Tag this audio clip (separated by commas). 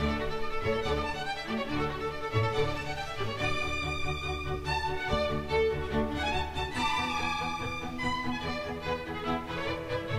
Music